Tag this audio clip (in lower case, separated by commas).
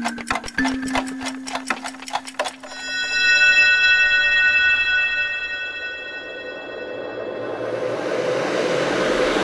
music, tick